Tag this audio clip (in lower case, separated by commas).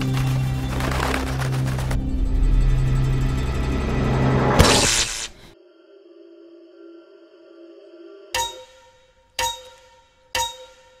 music